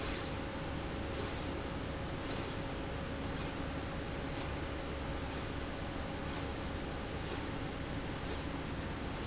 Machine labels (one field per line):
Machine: slide rail